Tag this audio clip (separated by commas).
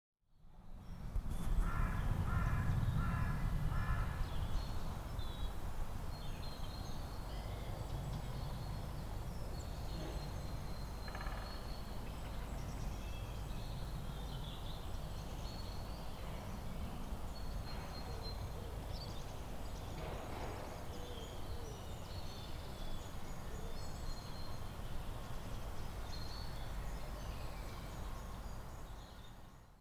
Animal, Wild animals, Bird, bird song